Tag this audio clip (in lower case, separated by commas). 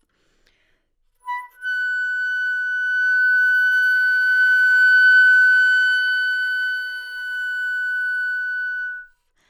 musical instrument, music, wind instrument